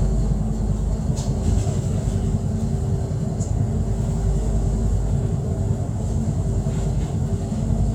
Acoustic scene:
bus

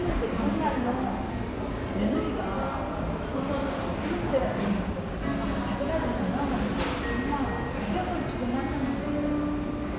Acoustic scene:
cafe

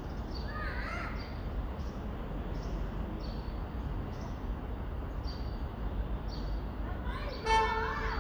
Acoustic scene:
residential area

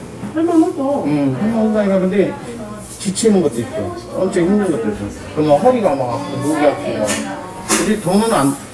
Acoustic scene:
crowded indoor space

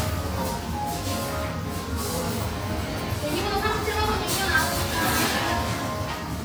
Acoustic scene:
cafe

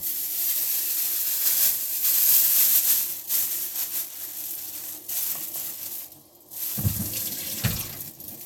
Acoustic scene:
kitchen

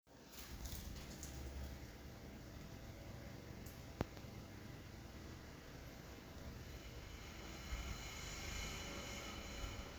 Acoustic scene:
elevator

